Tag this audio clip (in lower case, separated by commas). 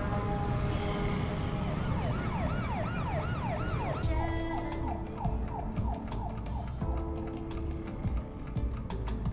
music